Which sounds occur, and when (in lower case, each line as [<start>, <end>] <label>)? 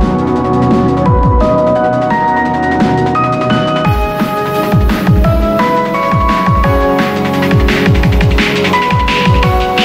[0.00, 9.84] music